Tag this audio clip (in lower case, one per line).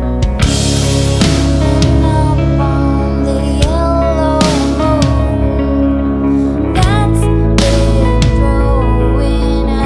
music